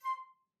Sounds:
wind instrument, musical instrument, music

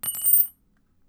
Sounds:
keys jangling, domestic sounds

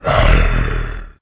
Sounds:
animal

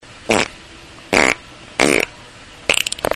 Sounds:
fart

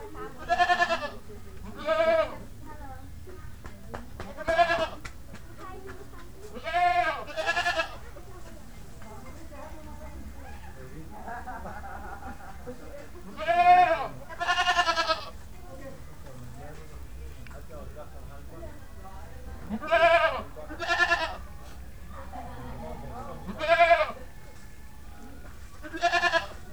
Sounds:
livestock, animal

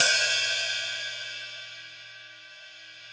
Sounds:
hi-hat, cymbal, musical instrument, percussion, music

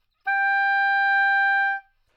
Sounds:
musical instrument, wind instrument, music

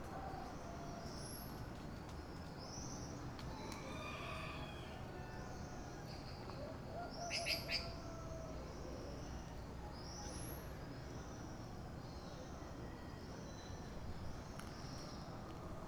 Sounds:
animal, fowl, chicken, livestock

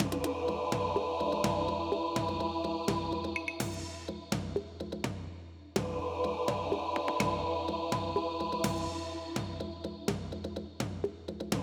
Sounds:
singing, human voice

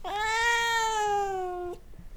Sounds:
animal, pets, cat

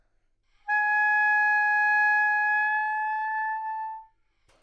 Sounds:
musical instrument, music, woodwind instrument

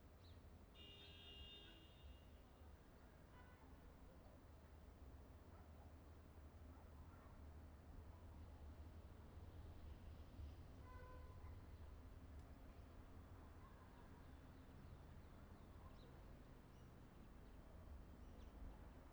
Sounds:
motor vehicle (road), alarm, honking, car, vehicle

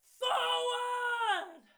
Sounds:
shout, human voice

